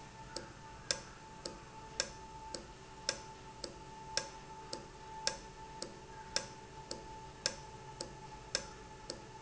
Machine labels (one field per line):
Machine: valve